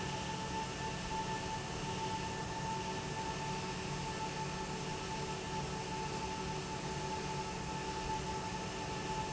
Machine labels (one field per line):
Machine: fan